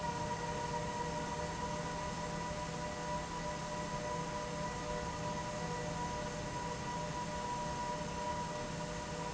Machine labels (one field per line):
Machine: fan